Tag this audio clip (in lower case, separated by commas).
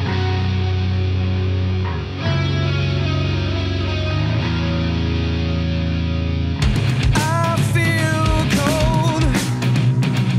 exciting music, rhythm and blues, music